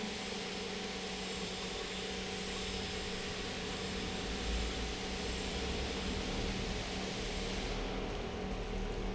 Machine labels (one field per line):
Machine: pump